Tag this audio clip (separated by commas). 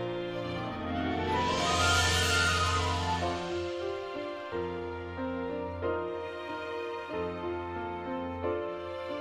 Music